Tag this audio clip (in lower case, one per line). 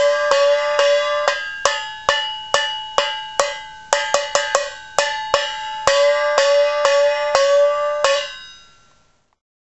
musical instrument